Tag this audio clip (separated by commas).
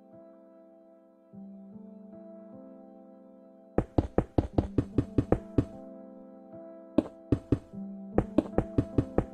Music